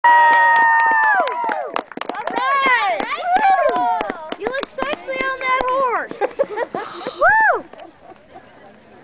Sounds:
clip-clop, speech

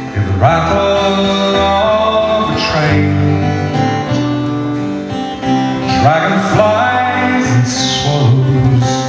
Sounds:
music

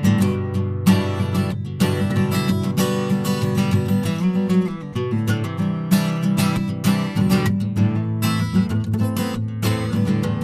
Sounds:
guitar, music, bass guitar, plucked string instrument, musical instrument

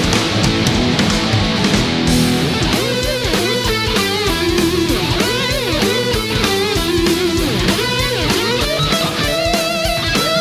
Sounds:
music

